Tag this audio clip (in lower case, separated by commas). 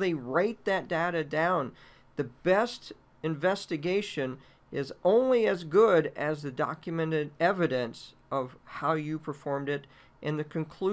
speech